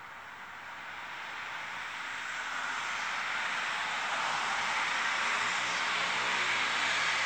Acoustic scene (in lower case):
street